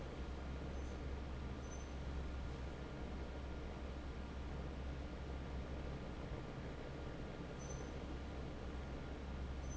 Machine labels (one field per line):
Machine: fan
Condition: normal